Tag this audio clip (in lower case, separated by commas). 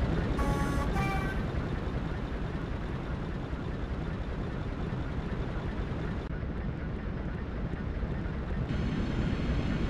vehicle, train, train wagon, rail transport